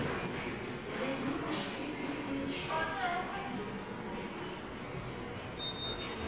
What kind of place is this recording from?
subway station